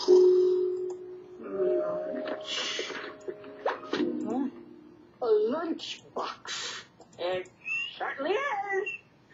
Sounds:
speech

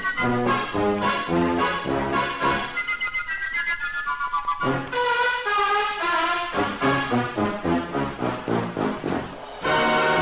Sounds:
music

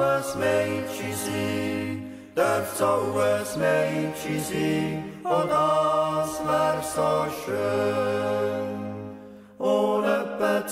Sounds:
yodelling

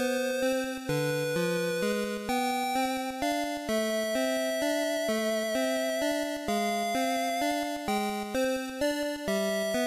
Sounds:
soundtrack music, music

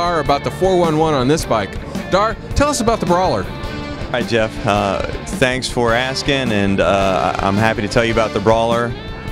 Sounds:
speech, music

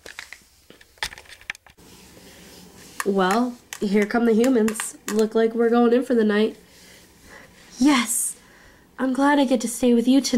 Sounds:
speech

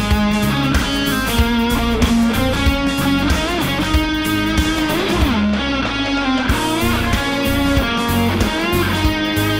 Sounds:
guitar, musical instrument, electric guitar, plucked string instrument, music, playing electric guitar, strum

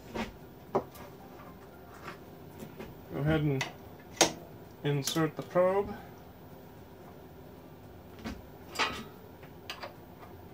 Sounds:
speech, music

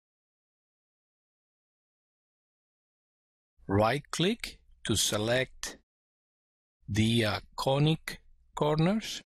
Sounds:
speech

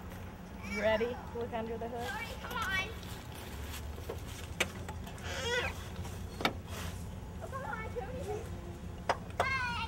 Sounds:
outside, rural or natural, speech

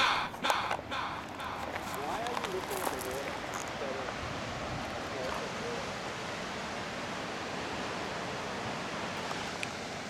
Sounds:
waves, speech

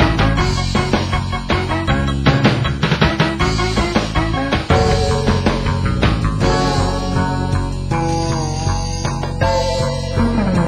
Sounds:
theme music, music

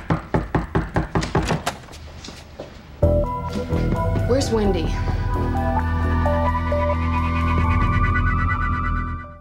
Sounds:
speech, door, music

